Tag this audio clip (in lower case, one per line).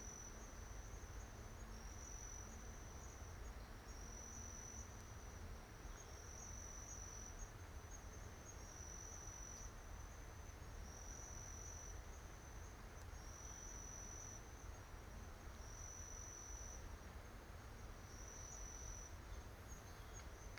insect
animal
wild animals
cricket